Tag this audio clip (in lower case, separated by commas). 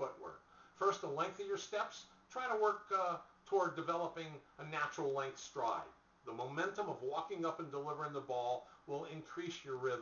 speech